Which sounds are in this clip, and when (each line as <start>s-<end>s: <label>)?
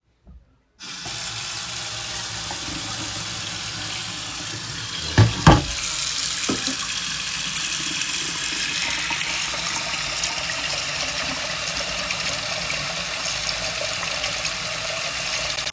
0.8s-15.7s: running water
4.4s-6.6s: cutlery and dishes
6.6s-6.8s: cutlery and dishes